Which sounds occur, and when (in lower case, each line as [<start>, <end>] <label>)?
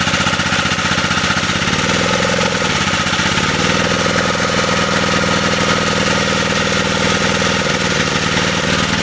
[0.00, 9.02] light engine (high frequency)